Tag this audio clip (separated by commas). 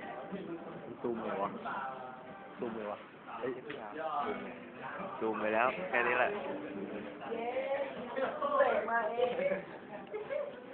Musical instrument, Music, Acoustic guitar, Plucked string instrument, Speech